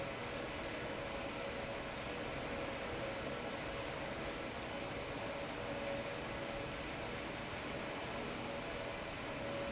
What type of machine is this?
fan